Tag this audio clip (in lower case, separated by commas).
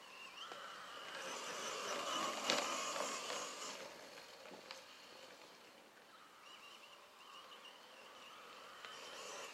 vehicle